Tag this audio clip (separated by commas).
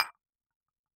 Tap, Glass